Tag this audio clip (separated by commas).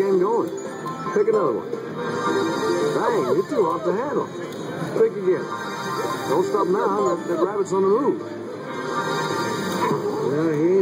Music, Speech